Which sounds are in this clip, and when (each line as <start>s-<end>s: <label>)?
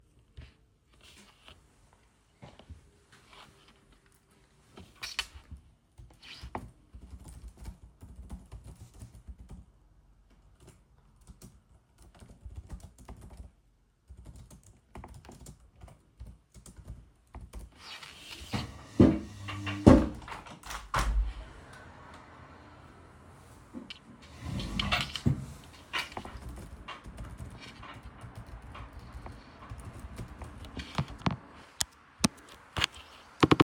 5.6s-17.9s: keyboard typing
18.9s-21.4s: window
23.6s-24.1s: window
26.8s-31.5s: keyboard typing